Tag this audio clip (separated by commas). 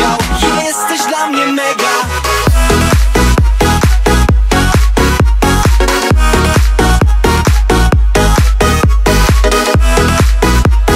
Music